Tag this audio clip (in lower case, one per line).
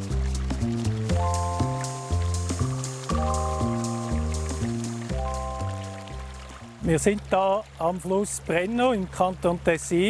trickle
music
speech
stream